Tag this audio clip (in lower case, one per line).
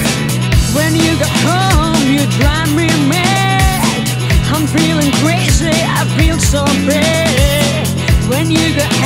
music